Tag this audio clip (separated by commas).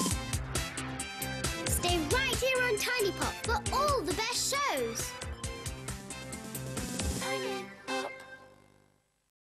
Music, Speech